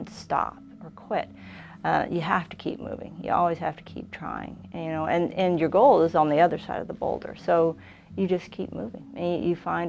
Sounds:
speech, inside a small room

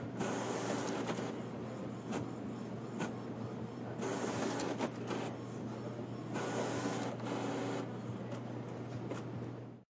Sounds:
printer

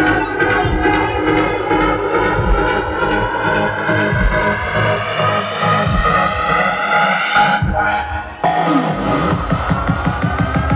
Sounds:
electronic music, house music, trance music, music

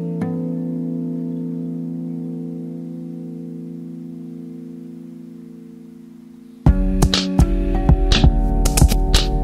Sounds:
music

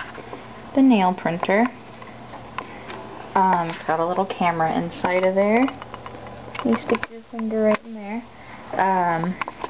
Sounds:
speech

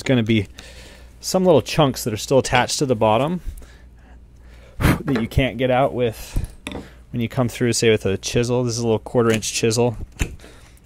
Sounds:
speech

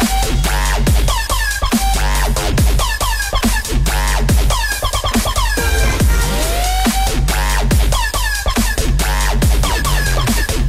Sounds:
dubstep, music

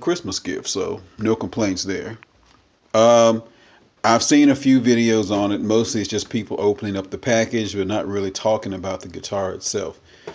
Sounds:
speech

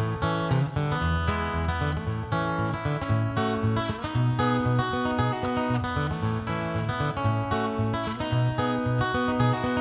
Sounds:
guitar, acoustic guitar, musical instrument, plucked string instrument, music

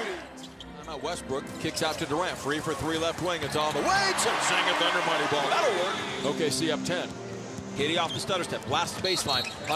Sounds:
music, speech

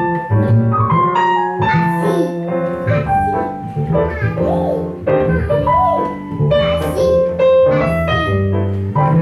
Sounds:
music, speech

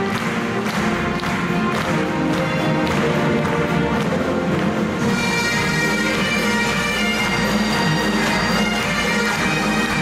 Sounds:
orchestra, musical instrument, music, fiddle

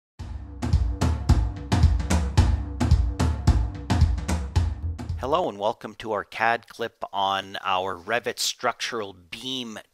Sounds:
inside a small room, speech, music

